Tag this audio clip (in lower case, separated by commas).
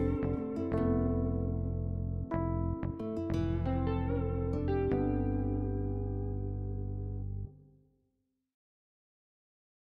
music